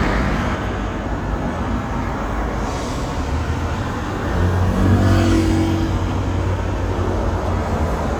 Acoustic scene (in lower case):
street